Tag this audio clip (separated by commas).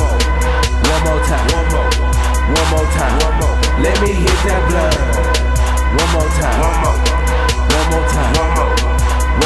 Independent music, Music, Dance music, Soul music